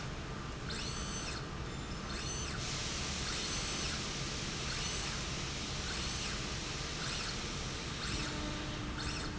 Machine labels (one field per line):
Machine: slide rail